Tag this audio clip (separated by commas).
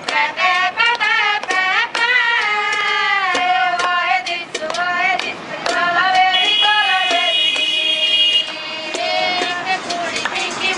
Female singing